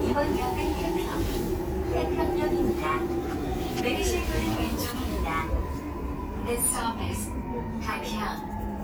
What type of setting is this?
subway train